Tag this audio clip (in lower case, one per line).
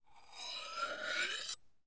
home sounds
cutlery